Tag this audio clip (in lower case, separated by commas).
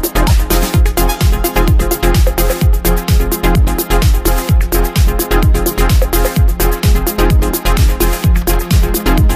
music, bass drum, musical instrument, drum